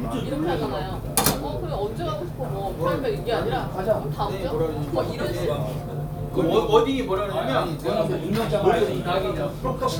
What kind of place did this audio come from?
crowded indoor space